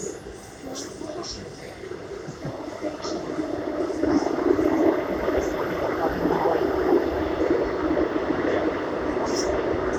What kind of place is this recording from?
subway train